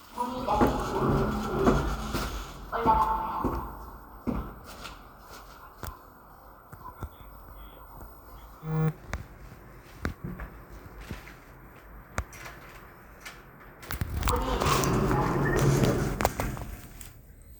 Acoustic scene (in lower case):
elevator